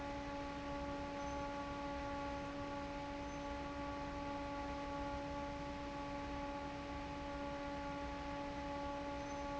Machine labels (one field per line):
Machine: fan